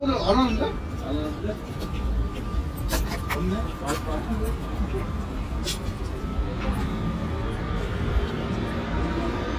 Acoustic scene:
residential area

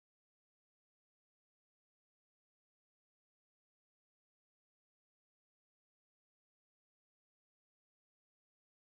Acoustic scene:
restroom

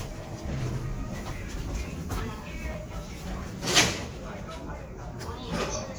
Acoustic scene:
elevator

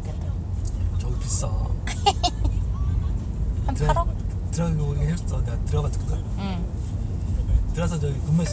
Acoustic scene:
car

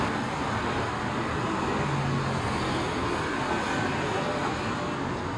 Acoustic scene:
street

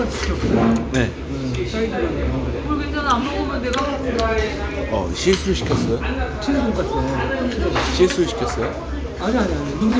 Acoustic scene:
restaurant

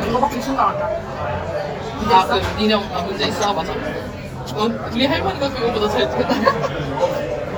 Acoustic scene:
restaurant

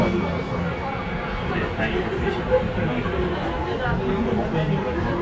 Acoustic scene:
subway train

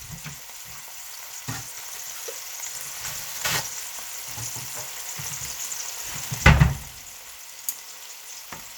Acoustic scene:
kitchen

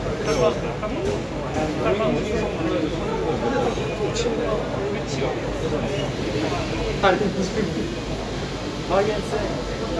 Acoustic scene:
crowded indoor space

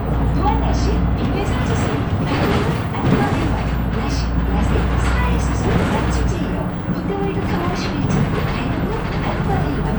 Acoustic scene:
bus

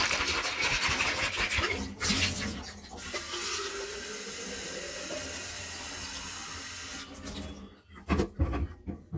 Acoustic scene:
kitchen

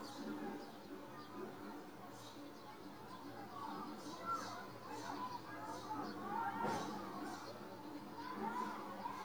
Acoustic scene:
residential area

